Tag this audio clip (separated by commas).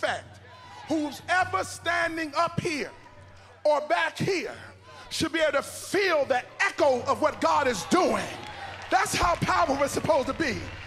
Speech